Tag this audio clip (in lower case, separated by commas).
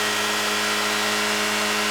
vehicle, car, motor vehicle (road)